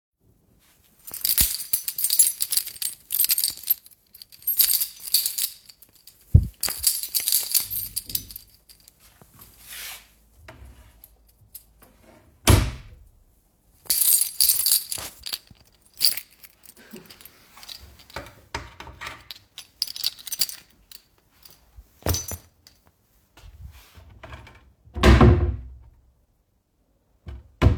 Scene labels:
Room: living room; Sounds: keys, wardrobe or drawer (more than once)

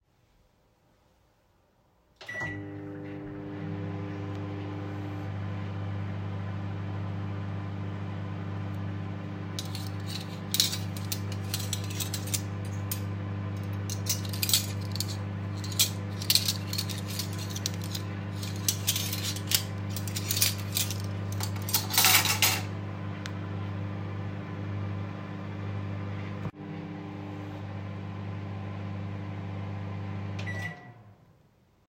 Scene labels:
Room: kitchen; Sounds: microwave, cutlery and dishes

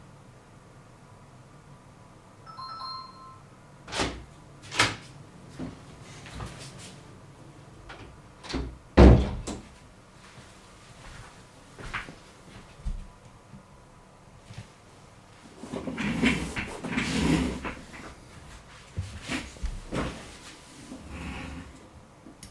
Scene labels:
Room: living room; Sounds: bell ringing, door, footsteps

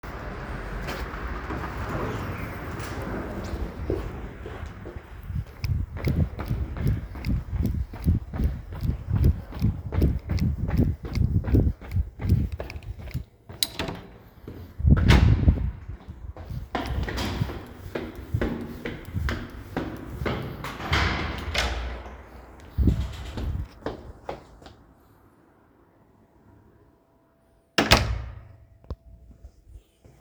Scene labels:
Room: hallway; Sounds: footsteps, door (more than once)

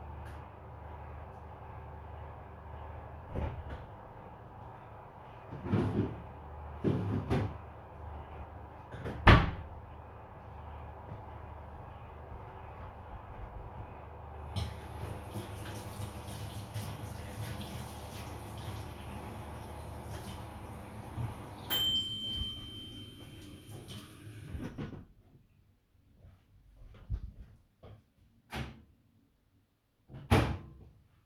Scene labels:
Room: kitchen; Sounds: microwave, footsteps, running water

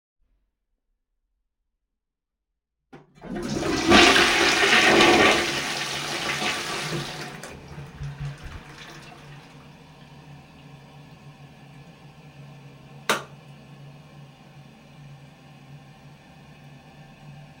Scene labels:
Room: bathroom; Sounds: toilet flushing, light switch

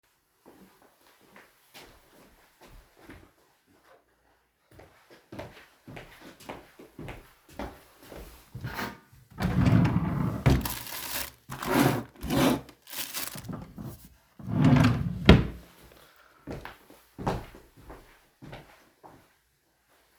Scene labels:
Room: living room; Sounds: footsteps, wardrobe or drawer (more than once)

